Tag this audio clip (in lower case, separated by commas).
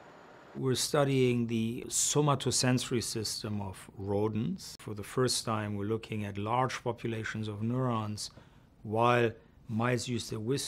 speech